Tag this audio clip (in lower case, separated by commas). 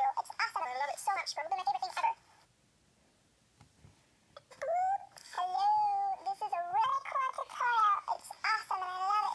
speech, inside a small room